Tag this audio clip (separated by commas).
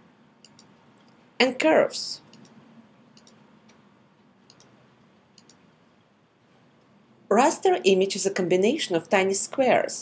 Speech